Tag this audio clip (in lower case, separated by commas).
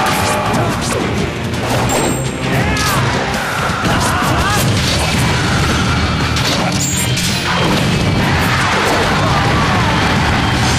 whack